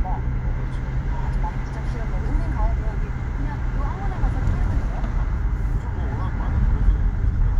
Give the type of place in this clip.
car